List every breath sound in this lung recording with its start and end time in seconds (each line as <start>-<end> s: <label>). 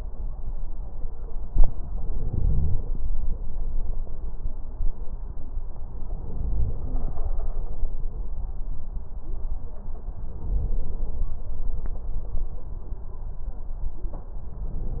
1.93-3.05 s: inhalation
2.15-2.79 s: wheeze
6.07-7.19 s: inhalation
10.29-11.41 s: inhalation
14.58-15.00 s: inhalation